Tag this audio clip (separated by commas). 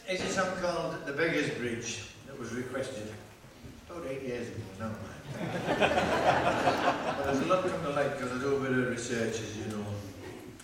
Speech